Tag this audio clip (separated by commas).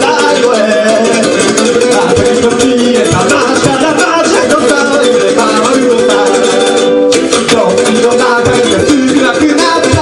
inside a small room, Ukulele, Music